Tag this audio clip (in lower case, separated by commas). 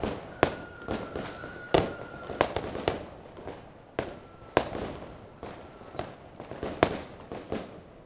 fireworks, explosion